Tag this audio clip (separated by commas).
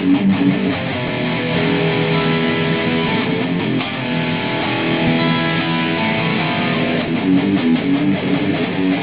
Guitar, Strum, Musical instrument, Electric guitar, Music